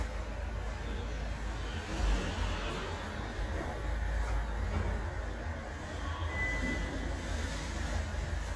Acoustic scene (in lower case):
elevator